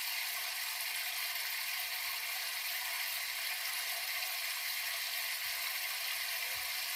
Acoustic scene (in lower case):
restroom